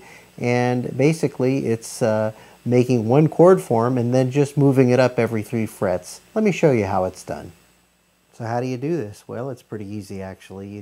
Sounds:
Speech

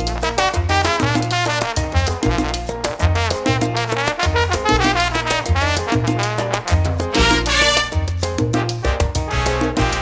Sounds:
Music

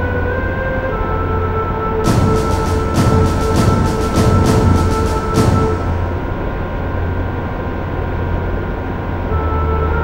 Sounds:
Music

